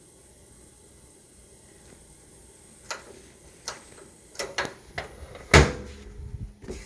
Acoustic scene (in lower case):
kitchen